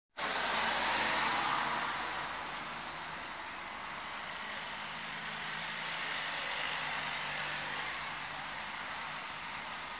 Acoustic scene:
street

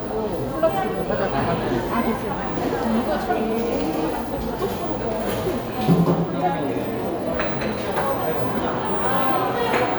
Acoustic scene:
cafe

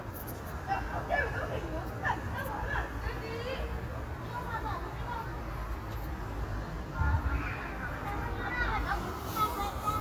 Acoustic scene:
residential area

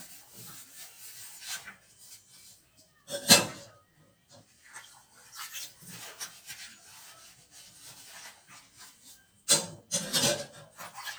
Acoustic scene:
kitchen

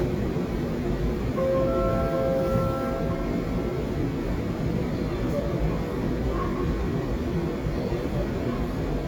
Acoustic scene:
subway train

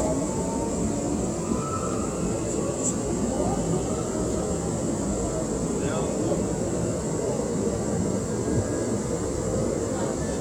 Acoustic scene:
subway train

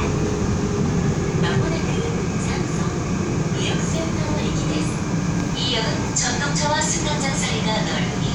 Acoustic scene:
subway train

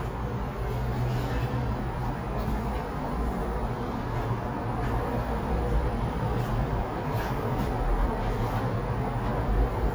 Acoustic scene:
elevator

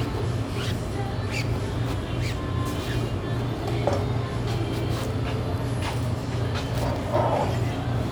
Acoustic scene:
restaurant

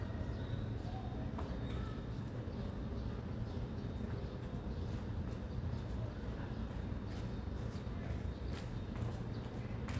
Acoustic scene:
residential area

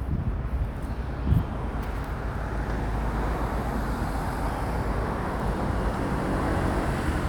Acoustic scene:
residential area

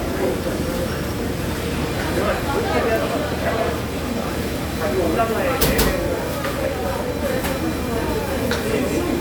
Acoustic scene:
restaurant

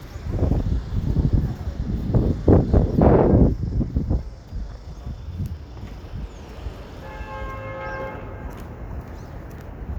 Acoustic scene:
street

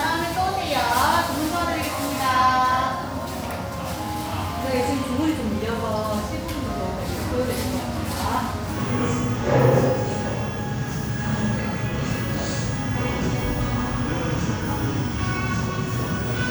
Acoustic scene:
cafe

